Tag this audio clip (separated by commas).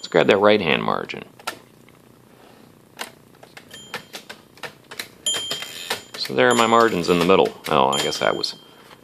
Speech, Typewriter